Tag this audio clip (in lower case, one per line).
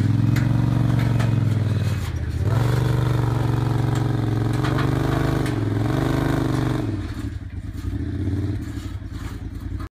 vehicle
car